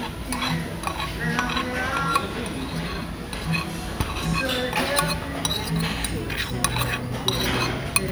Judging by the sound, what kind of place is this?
restaurant